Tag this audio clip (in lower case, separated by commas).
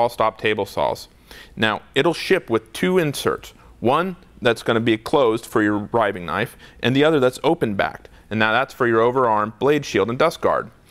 speech